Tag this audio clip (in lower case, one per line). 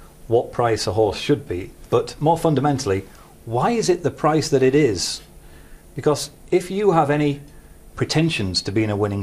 speech